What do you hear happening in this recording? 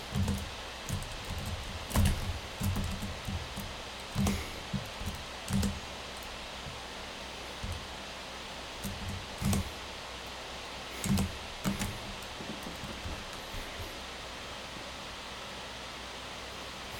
I typed intensively on a laptop keyboard. The working laptop is producing a loud noise.